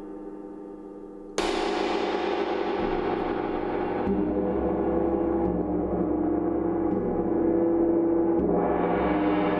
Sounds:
playing gong

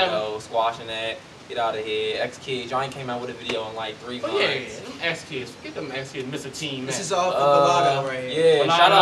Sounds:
speech

